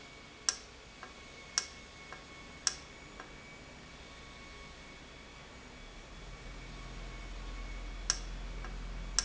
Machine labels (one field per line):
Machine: valve